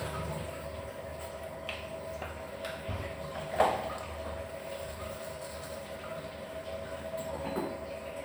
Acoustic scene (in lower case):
restroom